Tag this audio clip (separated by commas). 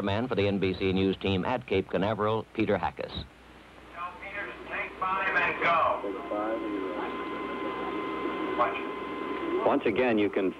Speech